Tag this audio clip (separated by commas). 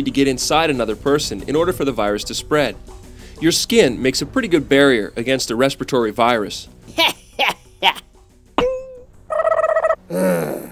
Speech, Music